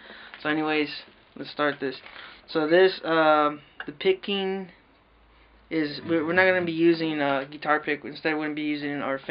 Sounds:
music, guitar, musical instrument, plucked string instrument, speech, strum, acoustic guitar

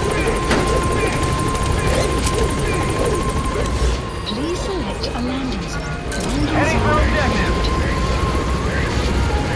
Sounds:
music, speech

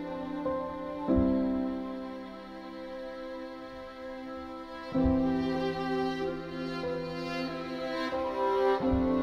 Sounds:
music

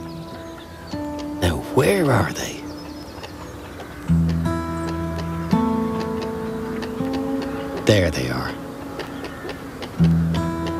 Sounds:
music, speech

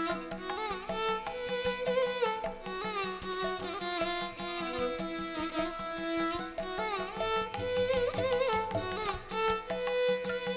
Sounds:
musical instrument, music, fiddle

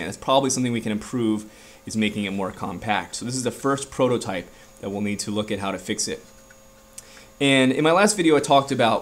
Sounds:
speech

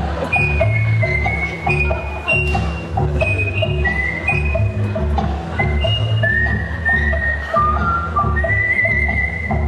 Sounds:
whistle

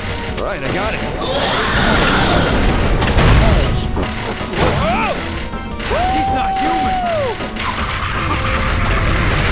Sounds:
music, speech, boom

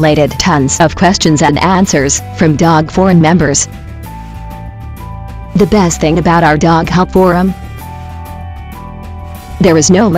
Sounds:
speech, music

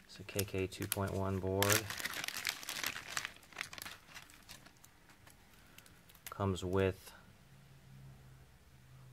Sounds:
inside a small room, speech, crumpling

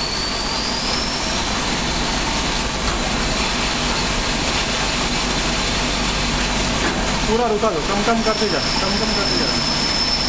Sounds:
speech

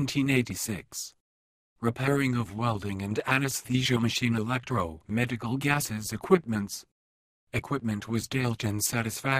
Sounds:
speech

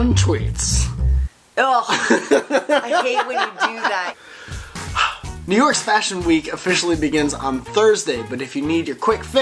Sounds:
speech, music

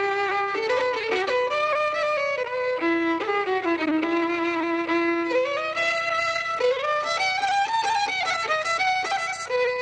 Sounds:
music, fiddle

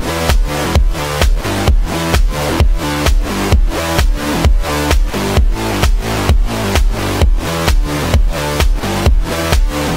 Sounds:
music

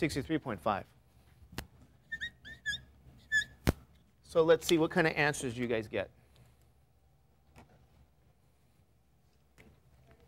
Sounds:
speech, inside a large room or hall

